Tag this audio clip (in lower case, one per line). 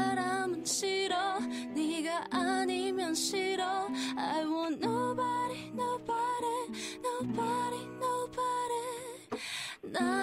music
radio